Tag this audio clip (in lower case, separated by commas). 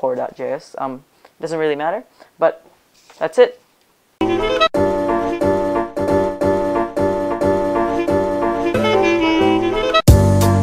speech, music, woodwind instrument